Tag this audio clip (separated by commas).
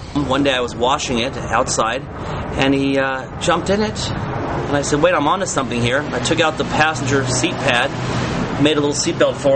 Speech